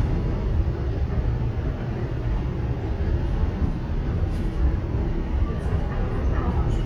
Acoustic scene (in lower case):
subway train